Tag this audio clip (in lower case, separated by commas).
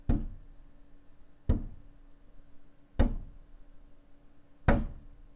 thump